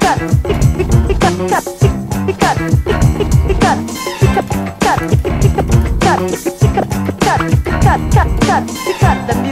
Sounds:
Scratching (performance technique), Funk, Music

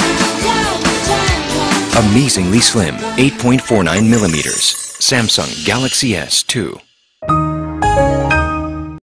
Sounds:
Music, Speech

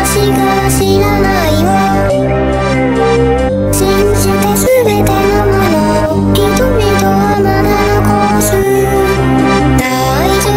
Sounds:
Music

